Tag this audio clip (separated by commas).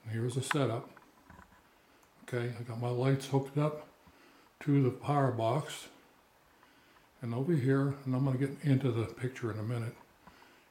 Speech